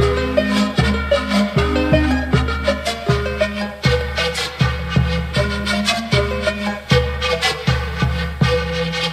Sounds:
music

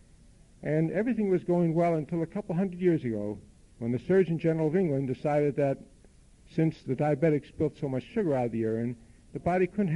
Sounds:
speech, male speech

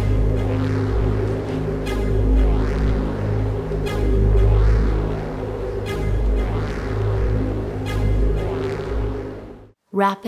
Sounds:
music

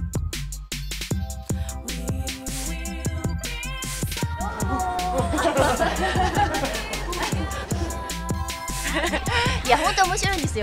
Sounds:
speech, music

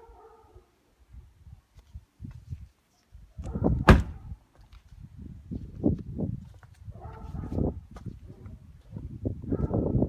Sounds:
door

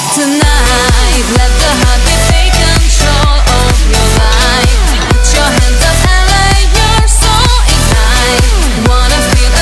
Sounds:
music

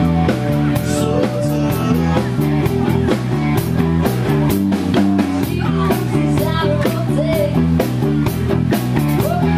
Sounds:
sampler, music

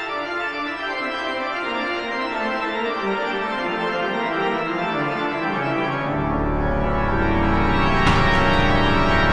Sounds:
playing electronic organ

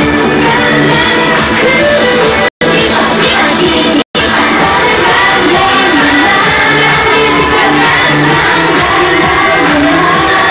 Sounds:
music

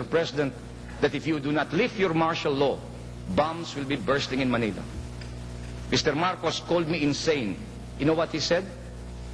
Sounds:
narration, male speech, speech

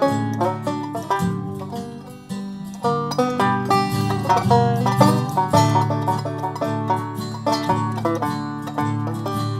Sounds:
music, bluegrass, plucked string instrument, musical instrument, banjo

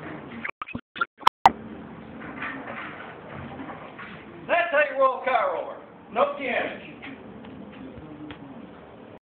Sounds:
speech

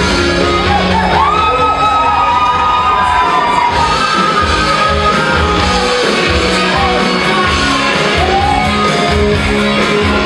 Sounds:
dance music, music

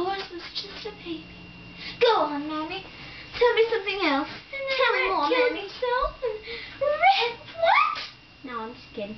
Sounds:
speech

